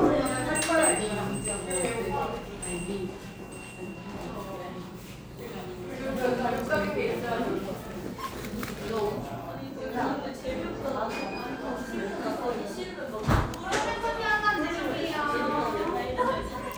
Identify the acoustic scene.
cafe